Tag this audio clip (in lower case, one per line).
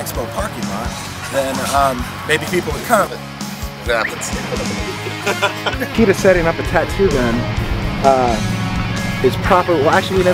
speech
music